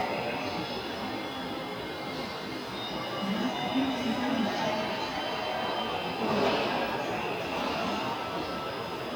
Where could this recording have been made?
in a subway station